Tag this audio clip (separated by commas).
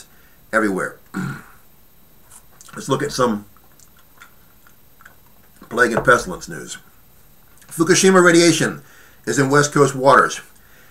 Speech, Male speech